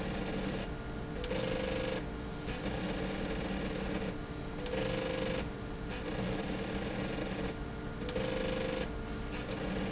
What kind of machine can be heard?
slide rail